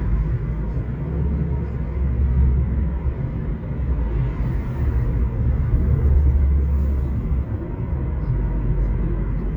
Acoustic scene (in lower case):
car